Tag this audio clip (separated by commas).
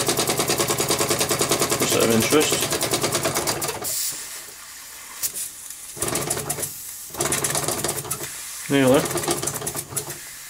Steam, Hiss